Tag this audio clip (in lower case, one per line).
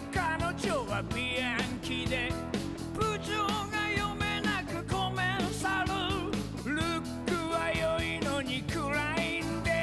music